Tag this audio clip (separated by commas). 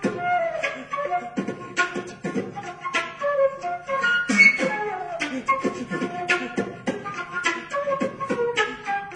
Classical music, playing flute, Music, Musical instrument, Beatboxing, Flute, woodwind instrument